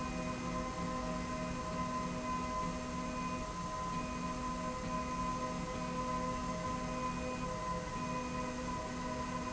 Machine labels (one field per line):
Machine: slide rail